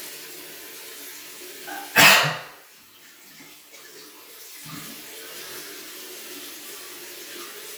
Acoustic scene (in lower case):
restroom